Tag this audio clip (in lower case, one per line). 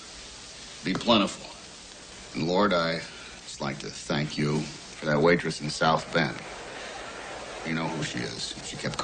inside a small room
speech